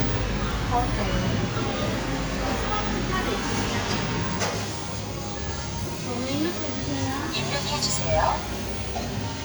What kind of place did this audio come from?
cafe